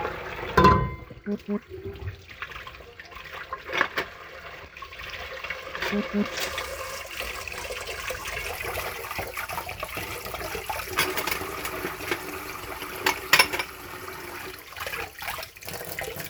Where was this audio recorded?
in a kitchen